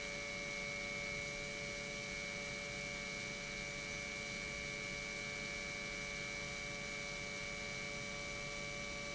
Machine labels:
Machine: pump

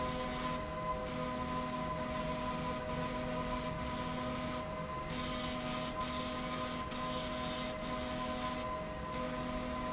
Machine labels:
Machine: slide rail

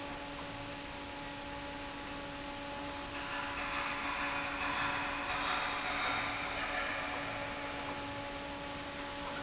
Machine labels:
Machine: fan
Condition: normal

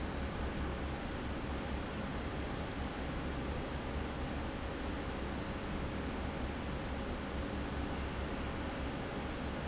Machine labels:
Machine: fan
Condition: normal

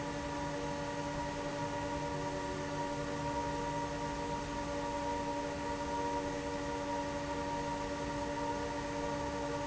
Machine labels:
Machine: fan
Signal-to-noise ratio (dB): -6 dB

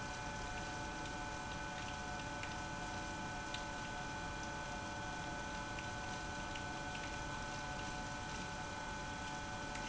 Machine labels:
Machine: pump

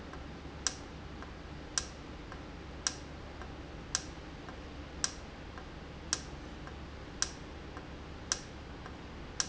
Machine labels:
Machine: valve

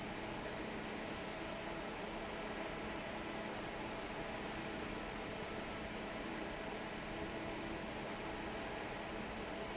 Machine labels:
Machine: fan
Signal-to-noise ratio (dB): 6 dB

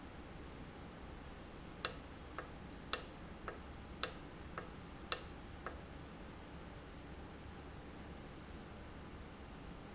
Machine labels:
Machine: valve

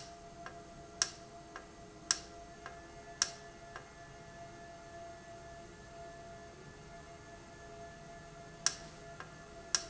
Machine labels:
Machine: valve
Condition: normal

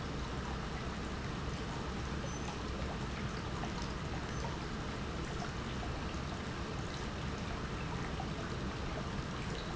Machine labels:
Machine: pump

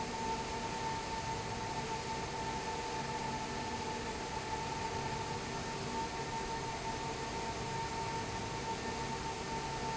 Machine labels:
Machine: fan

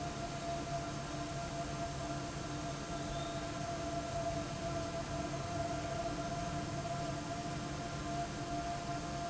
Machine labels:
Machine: fan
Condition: abnormal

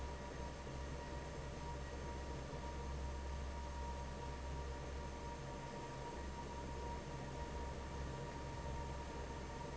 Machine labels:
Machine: fan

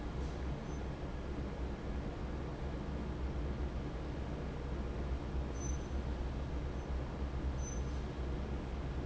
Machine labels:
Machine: fan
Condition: normal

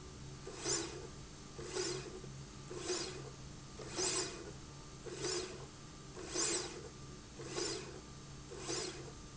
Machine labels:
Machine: slide rail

